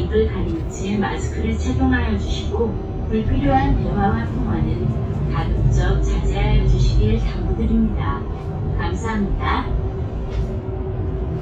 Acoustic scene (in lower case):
bus